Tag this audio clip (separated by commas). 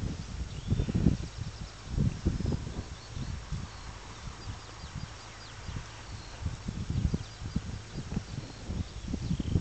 pets, Animal